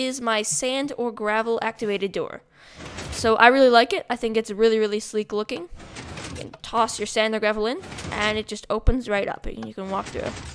Person speaking while a sliding door is moved